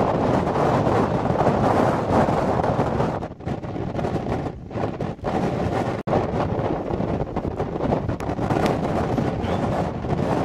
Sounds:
tornado roaring

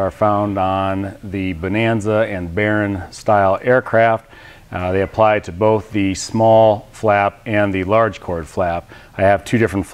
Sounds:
Speech

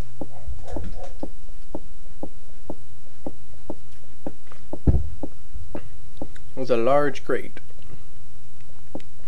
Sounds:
Speech

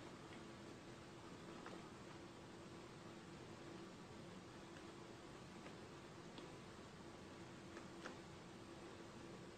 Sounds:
Speech

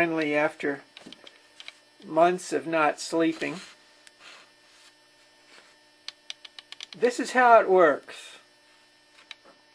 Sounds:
Speech

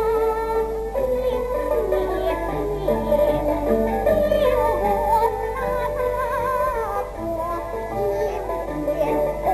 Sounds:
Music, Opera

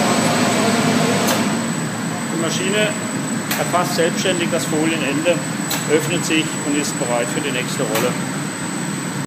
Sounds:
Speech

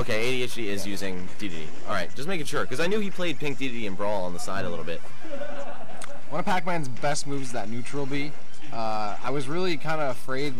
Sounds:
Speech, Smash, Music

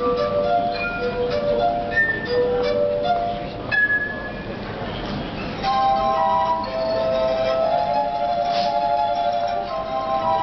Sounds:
Music

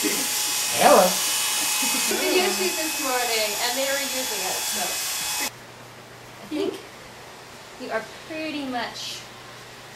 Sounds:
electric razor

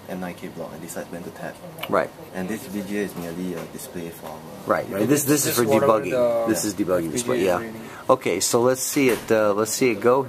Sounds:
Speech

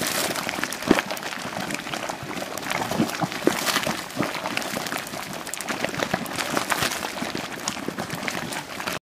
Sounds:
Liquid, Boiling

